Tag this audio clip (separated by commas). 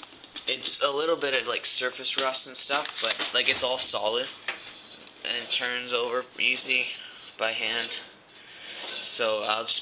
Speech, inside a small room